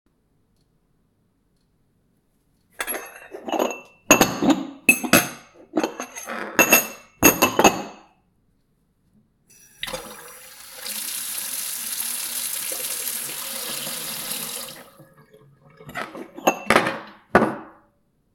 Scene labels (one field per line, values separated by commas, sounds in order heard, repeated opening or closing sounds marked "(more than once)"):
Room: kitchen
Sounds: cutlery and dishes, running water